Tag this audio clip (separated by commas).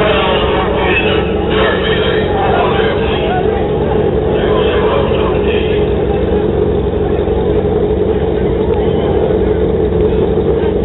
Motorcycle, Speech, outside, urban or man-made, Vehicle